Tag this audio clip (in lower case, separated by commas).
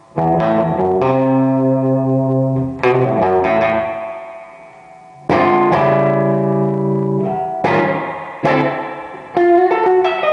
music